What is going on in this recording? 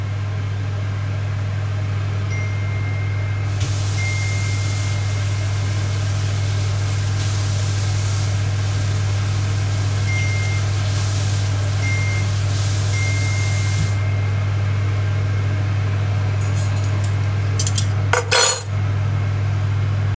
While waiting for my food to cook, I washed some cutlery at the sink, with the extractor fan humming in the background. My phone received a few notifications while I was washing. I turned off the tap and placed the cutlery on a shelf.